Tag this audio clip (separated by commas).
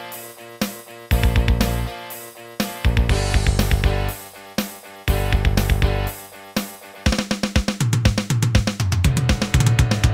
Music